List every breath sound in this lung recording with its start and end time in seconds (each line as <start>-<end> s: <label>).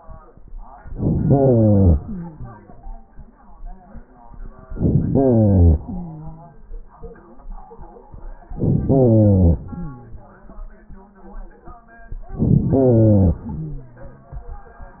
0.90-1.93 s: inhalation
1.90-2.65 s: exhalation
4.66-5.81 s: inhalation
5.77-6.55 s: exhalation
8.54-9.63 s: inhalation
9.62-10.46 s: exhalation
12.29-13.44 s: inhalation
13.43-14.35 s: exhalation